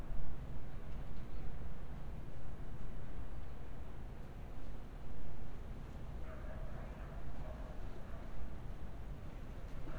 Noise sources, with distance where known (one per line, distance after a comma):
background noise